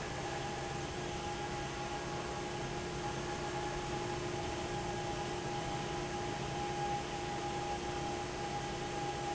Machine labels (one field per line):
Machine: fan